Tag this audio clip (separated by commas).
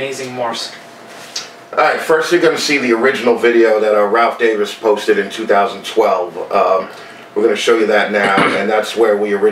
Speech